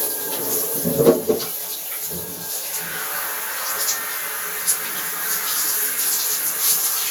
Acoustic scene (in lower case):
restroom